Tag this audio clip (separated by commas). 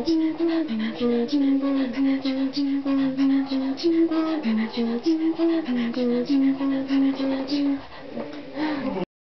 Female singing